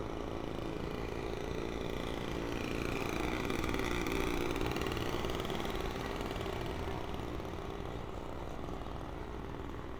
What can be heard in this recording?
small-sounding engine